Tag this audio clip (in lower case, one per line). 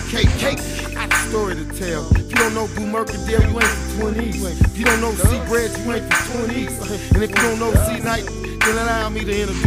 music